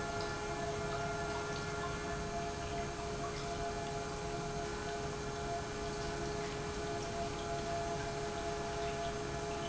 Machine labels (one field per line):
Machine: pump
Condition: normal